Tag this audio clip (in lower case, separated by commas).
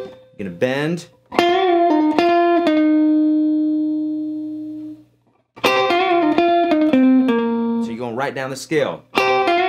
speech, music, acoustic guitar, plucked string instrument, musical instrument, guitar